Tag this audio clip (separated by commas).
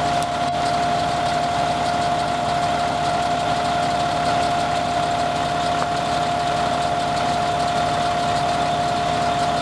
Emergency vehicle, Vehicle, Truck, Engine